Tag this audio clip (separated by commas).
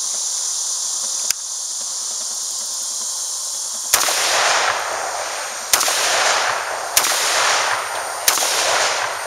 outside, rural or natural